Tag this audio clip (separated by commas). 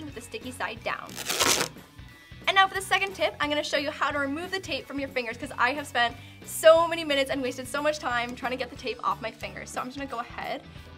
Music, Speech